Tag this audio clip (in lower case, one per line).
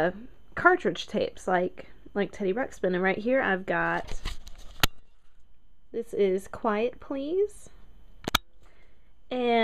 speech